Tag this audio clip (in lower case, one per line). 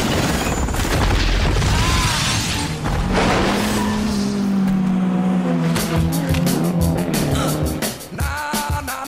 music
vehicle
car
motor vehicle (road)
car passing by